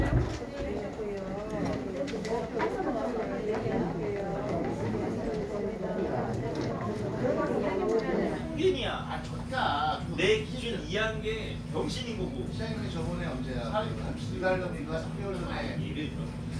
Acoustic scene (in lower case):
crowded indoor space